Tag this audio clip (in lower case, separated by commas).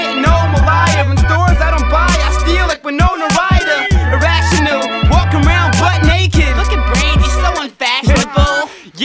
hip hop music, music, rapping